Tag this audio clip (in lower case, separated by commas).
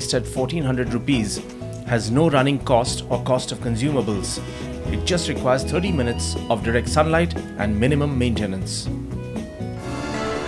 speech, music